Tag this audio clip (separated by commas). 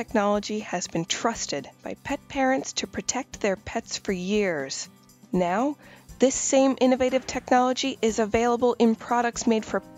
Music, Speech